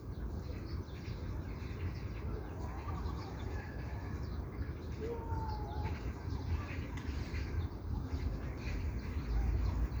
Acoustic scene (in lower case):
park